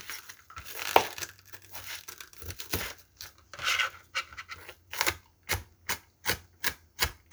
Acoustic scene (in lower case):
kitchen